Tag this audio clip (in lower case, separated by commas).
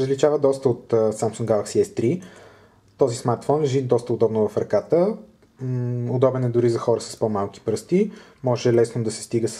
speech